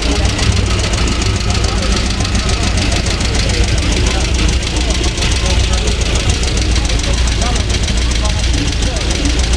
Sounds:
Speech, Car, Vehicle

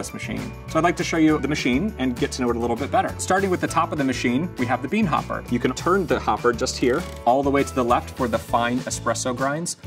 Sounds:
Speech, Music

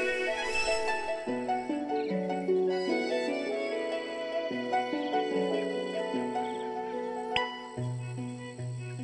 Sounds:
Music

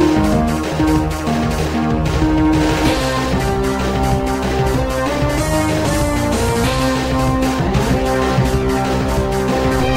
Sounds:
Music, Video game music

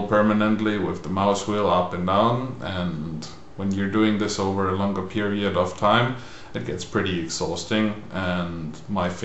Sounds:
Speech

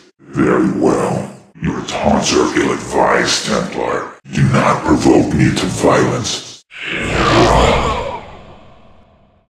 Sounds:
Speech

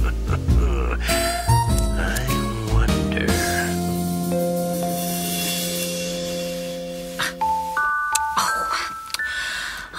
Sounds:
Speech, Music, inside a small room

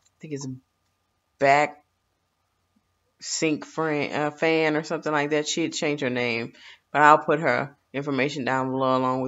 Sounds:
Speech

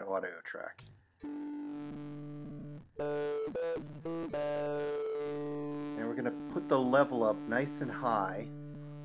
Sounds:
Speech, Music

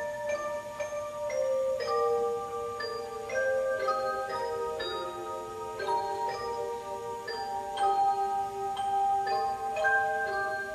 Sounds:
Mallet percussion, Marimba, Glockenspiel, xylophone

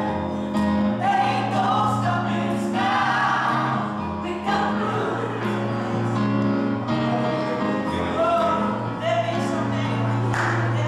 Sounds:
Female singing, Music, Male singing

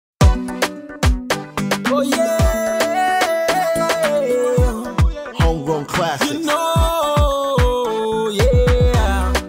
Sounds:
Afrobeat

